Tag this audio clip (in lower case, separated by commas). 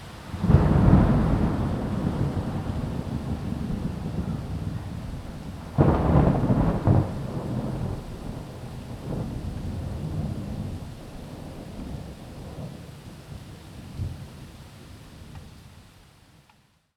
thunderstorm, water, rain, thunder